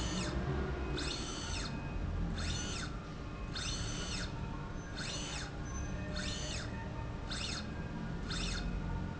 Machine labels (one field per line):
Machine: slide rail